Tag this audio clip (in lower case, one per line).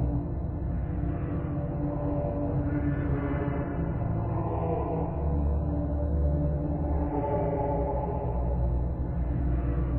electronic music
music